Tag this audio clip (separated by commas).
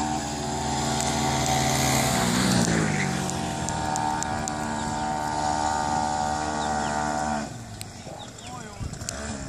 Speech, Vehicle, Boat, Motorboat